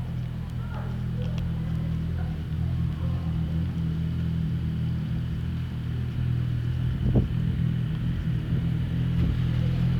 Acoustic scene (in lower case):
residential area